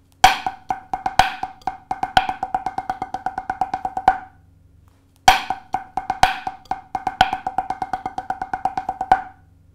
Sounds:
playing snare drum

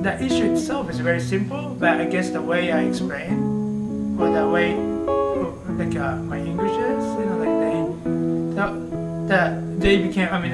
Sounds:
music, speech

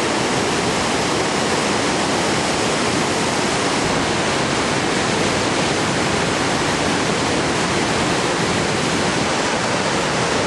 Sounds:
waterfall burbling, waterfall, ocean

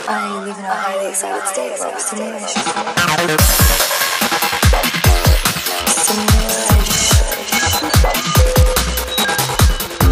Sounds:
trance music, drum and bass, music, speech

